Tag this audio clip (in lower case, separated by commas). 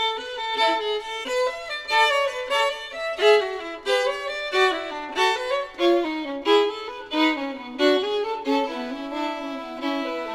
fiddle, music, musical instrument